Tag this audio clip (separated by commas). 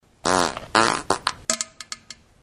Fart